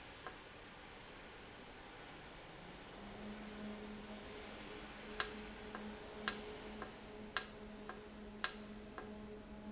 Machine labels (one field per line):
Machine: valve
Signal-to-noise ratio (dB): 6 dB